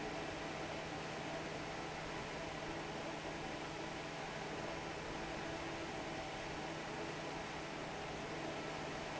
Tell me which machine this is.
fan